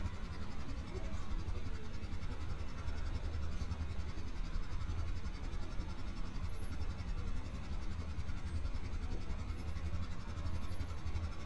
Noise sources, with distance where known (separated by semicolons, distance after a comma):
engine of unclear size, near